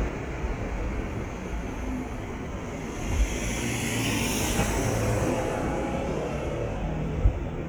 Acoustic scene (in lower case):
street